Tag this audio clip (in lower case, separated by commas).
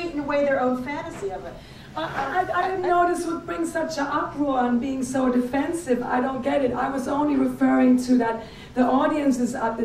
female speech, speech